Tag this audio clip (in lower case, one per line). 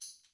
music
tambourine
musical instrument
percussion